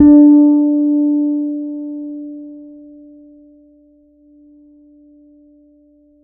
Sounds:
Musical instrument, Plucked string instrument, Music, Bass guitar, Guitar

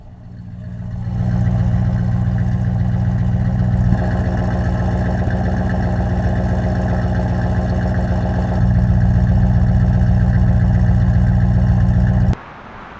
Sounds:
Engine, Vehicle, Motor vehicle (road), Idling, Car

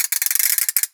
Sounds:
Mechanisms, pawl

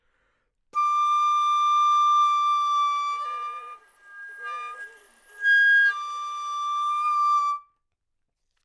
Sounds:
Wind instrument, Musical instrument, Music

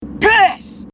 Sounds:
Human voice, Yell, Shout

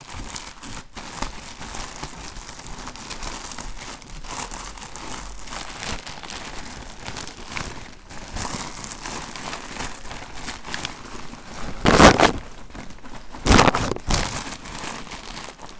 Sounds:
Crumpling

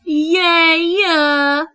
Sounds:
Human voice, Speech

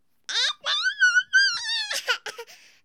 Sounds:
Speech, Human voice

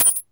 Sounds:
Coin (dropping), home sounds

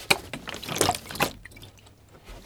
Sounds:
Liquid

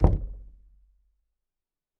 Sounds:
Door, Domestic sounds, Knock

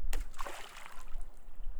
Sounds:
Splash, Liquid

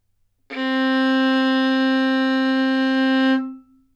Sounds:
Bowed string instrument, Musical instrument, Music

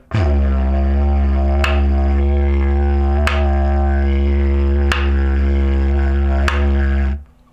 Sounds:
Music, Musical instrument

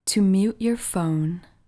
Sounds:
Human voice, Speech, Female speech

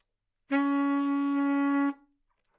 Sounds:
woodwind instrument, Music, Musical instrument

